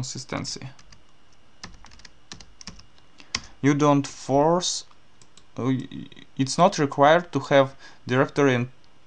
A man speaks while typing hard on a keyboard